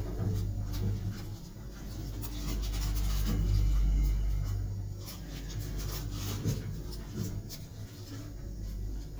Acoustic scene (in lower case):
elevator